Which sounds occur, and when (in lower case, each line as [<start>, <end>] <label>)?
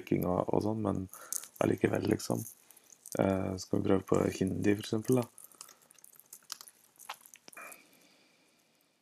[0.00, 0.25] computer keyboard
[0.00, 9.01] background noise
[0.10, 1.07] man speaking
[1.09, 1.58] breathing
[1.25, 1.54] computer keyboard
[1.56, 2.50] man speaking
[2.92, 3.48] computer keyboard
[3.14, 5.30] man speaking
[4.04, 4.31] computer keyboard
[5.00, 6.13] computer keyboard
[6.25, 6.74] computer keyboard
[6.93, 7.79] computer keyboard
[7.55, 7.84] sigh